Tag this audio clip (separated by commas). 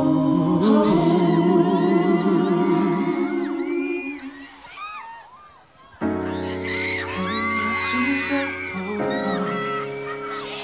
Music